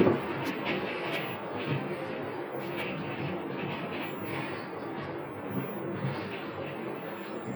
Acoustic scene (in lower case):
bus